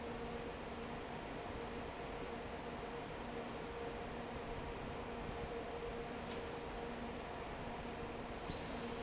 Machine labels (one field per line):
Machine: fan